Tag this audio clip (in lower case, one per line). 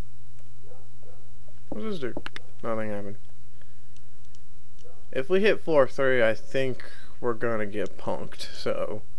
speech